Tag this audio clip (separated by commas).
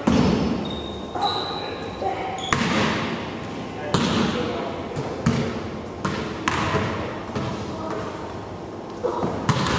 Speech